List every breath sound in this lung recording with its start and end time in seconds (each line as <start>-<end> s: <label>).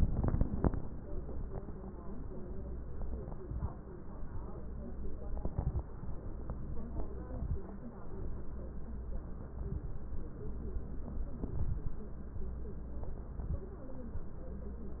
3.29-3.72 s: inhalation
3.29-3.72 s: crackles
5.47-5.91 s: inhalation
5.47-5.91 s: crackles
7.20-7.64 s: inhalation
7.20-7.64 s: crackles
9.60-10.03 s: inhalation
9.60-10.03 s: crackles
11.42-11.99 s: inhalation
11.42-11.99 s: crackles
13.41-13.74 s: inhalation
13.41-13.74 s: crackles